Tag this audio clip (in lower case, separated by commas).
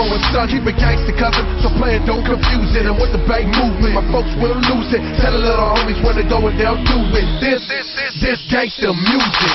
rapping, hip hop music, music